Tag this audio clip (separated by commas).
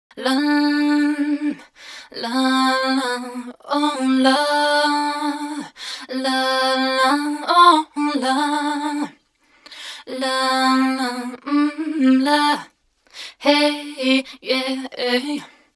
Singing, Human voice, Female singing